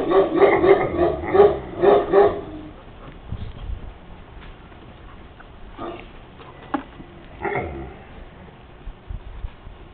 Intermittent barking dog